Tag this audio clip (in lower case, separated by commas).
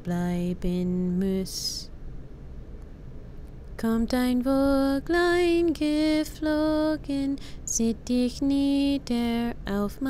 music, lullaby